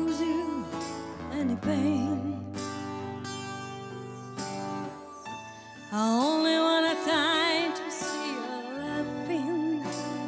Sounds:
Music, Drum, Musical instrument

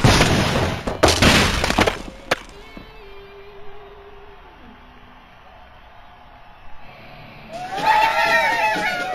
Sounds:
gunfire

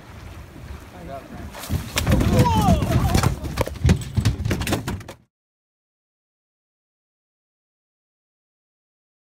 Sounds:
Speech, Boat

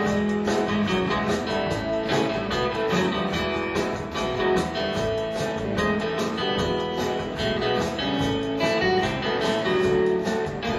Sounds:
Music

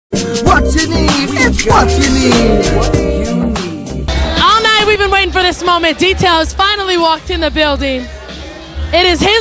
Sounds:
Hip hop music, Music, Speech

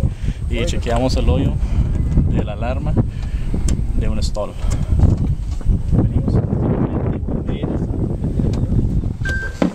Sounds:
Speech

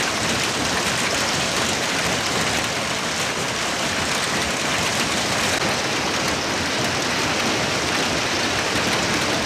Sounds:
hail

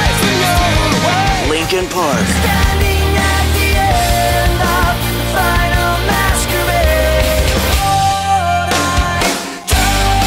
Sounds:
Speech, Music

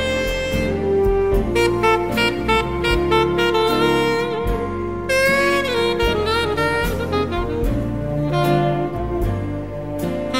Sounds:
Saxophone, Brass instrument

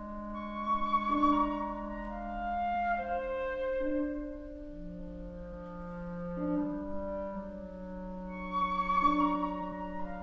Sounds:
Clarinet, Music

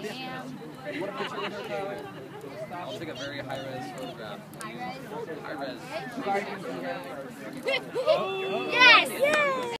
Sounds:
Speech

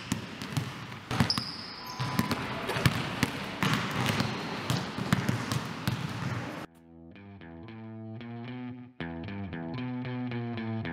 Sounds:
Music, inside a large room or hall

